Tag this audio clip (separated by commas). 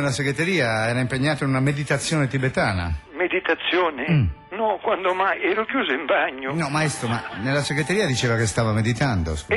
Speech, Music